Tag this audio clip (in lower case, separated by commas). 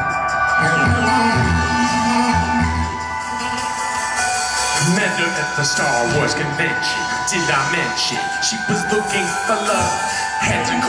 music, dubstep, electronic music